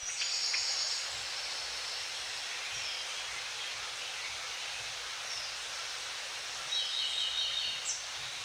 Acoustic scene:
park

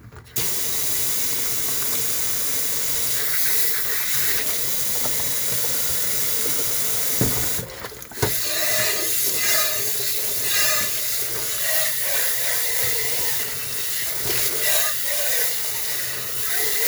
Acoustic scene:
kitchen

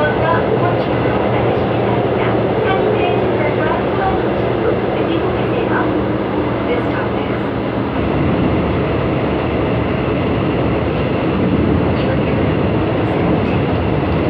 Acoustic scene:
subway train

